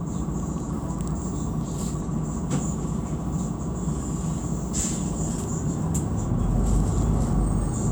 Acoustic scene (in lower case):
bus